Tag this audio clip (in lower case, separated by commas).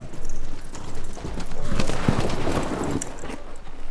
animal, livestock